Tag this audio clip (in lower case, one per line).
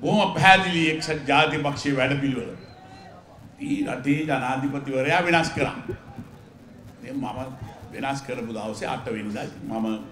narration
speech
man speaking